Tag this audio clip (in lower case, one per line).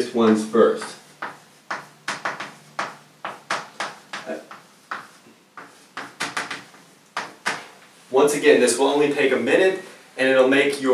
inside a small room
speech